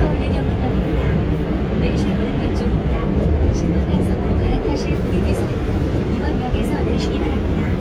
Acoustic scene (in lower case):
subway train